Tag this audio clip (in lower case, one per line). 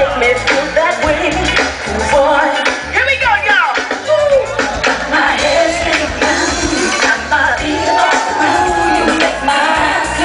female singing
music